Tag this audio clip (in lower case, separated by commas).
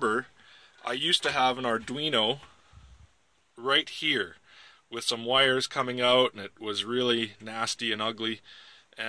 speech